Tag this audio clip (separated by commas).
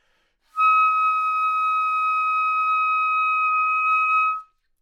Music, Wind instrument, Musical instrument